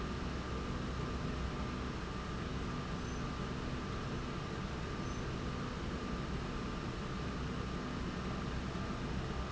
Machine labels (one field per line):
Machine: slide rail